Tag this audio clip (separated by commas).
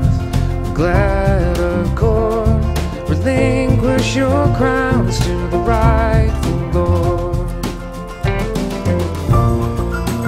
Music